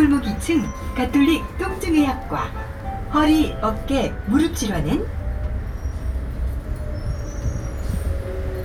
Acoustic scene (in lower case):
bus